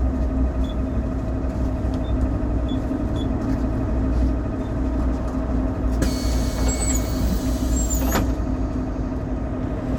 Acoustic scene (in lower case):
bus